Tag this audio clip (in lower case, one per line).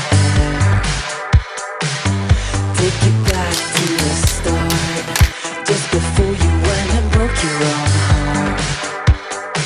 music